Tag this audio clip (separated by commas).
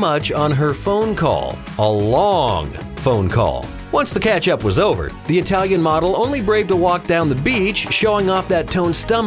Speech, Music